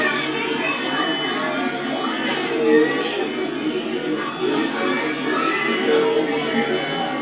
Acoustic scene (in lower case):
park